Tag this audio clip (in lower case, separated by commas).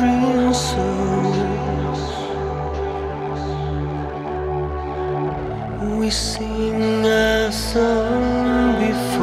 music